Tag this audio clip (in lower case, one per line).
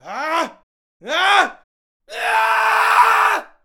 human voice
screaming